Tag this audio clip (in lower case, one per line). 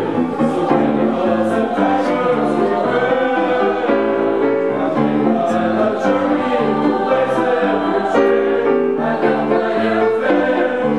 soul music
choir
music